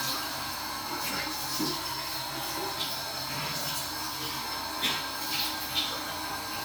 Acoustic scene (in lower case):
restroom